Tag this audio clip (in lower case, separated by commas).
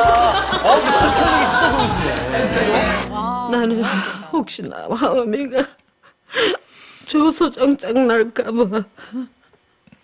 music, inside a large room or hall, speech